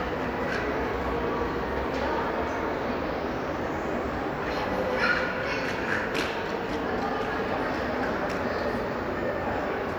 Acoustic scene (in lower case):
crowded indoor space